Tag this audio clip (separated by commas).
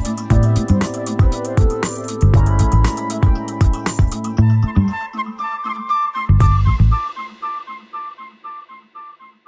Music, Musical instrument